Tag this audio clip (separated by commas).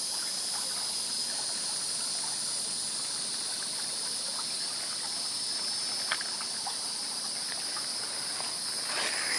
Insect, outside, rural or natural